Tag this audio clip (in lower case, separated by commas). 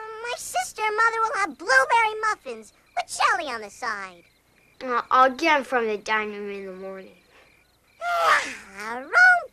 speech